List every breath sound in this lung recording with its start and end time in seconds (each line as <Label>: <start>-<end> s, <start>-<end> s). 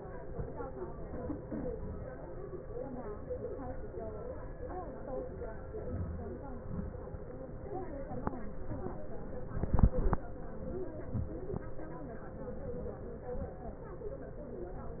Inhalation: 5.93-6.46 s
Exhalation: 6.69-7.19 s